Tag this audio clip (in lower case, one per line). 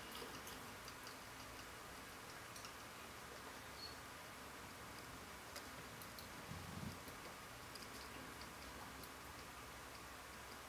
rodents